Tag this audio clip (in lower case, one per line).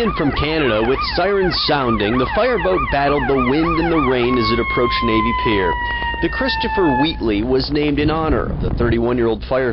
vehicle
speech